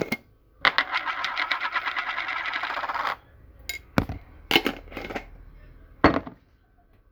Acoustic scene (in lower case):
kitchen